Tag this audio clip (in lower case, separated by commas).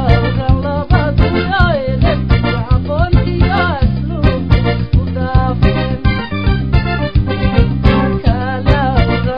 music, happy music